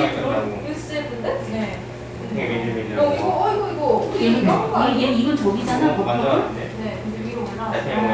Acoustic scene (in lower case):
crowded indoor space